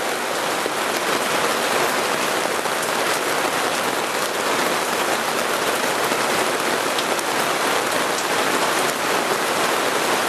Rain is falling very hard and a roaring sound is heard